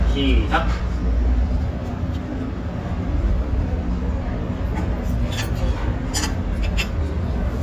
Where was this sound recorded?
in a restaurant